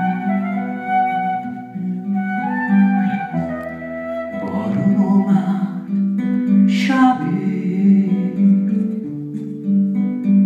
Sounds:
Guitar, Acoustic guitar, Musical instrument, Plucked string instrument, Music

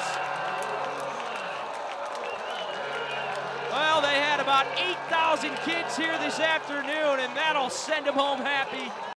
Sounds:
Speech

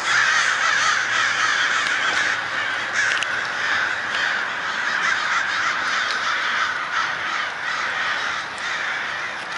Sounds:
crow cawing, Animal, Caw, Crow

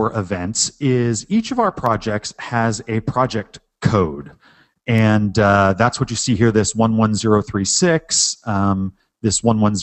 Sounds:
Speech

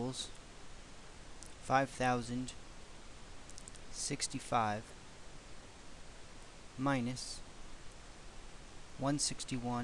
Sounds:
inside a small room, Speech

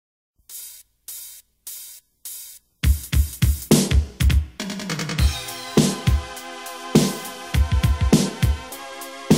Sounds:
Drum machine, Music

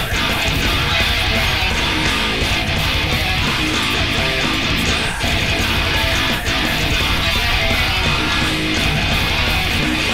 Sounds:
Music, Guitar, Musical instrument

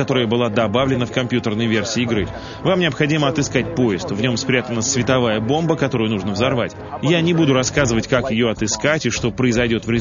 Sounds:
Speech, Music

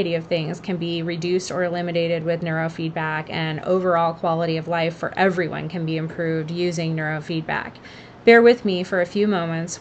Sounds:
Speech

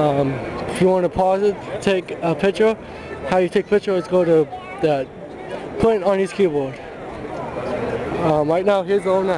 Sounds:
Speech

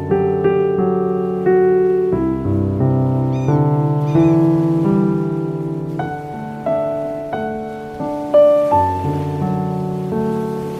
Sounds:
Music, New-age music

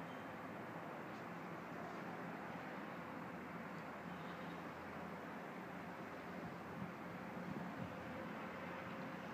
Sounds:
Rustling leaves

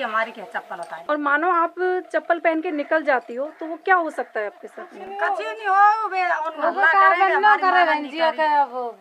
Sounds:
Speech

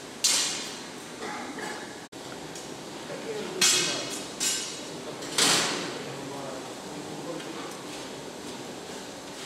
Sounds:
Speech

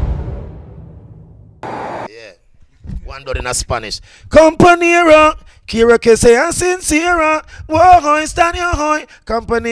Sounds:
Speech

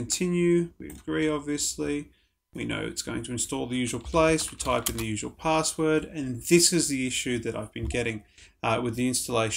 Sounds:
Speech

